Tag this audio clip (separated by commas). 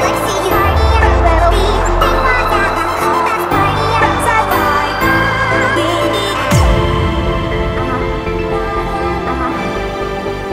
Music